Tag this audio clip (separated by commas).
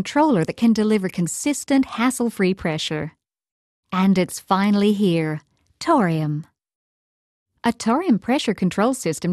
Speech